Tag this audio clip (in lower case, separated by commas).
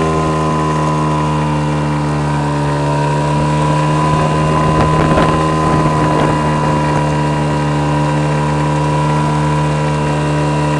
water vehicle, motorboat, wind noise (microphone), wind